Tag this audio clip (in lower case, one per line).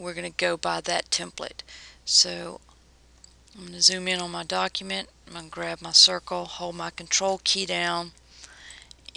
speech